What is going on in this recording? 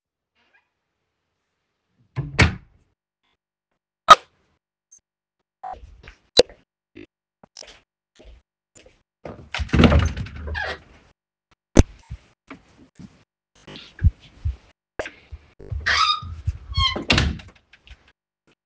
I closed the bedroom door, turned on the light switch, walked up to the wardrobe, opened the wardrobe, took a cliffhanger with a shirt out, closed the wardrobe.